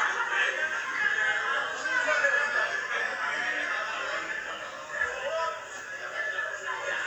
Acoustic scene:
crowded indoor space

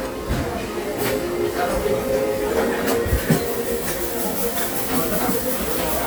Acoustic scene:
restaurant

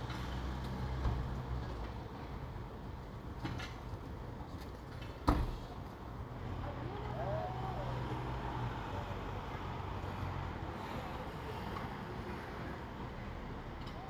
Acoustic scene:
residential area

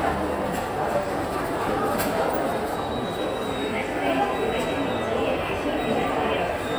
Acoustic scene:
subway station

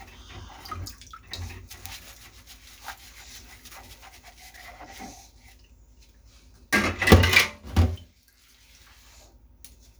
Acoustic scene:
kitchen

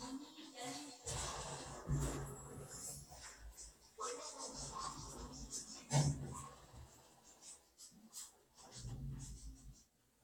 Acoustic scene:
elevator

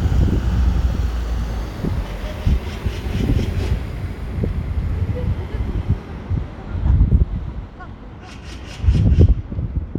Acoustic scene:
residential area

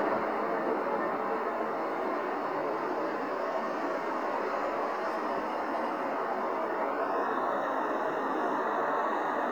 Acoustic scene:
street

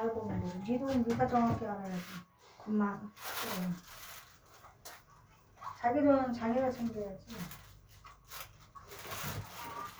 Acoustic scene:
elevator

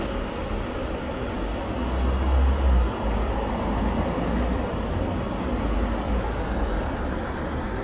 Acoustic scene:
street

